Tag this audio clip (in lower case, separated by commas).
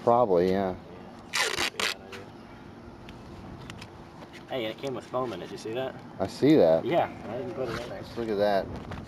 speech